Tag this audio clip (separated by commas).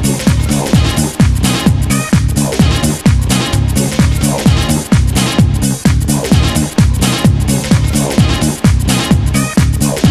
Disco, Electronic music, Music